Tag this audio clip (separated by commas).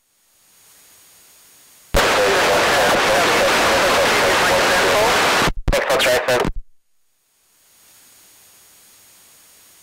Aircraft, airplane, Vehicle, Speech